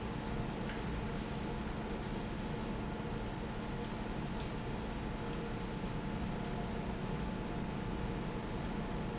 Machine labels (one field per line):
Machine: fan